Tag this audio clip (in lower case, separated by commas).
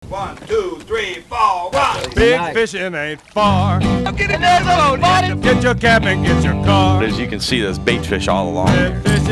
music, speech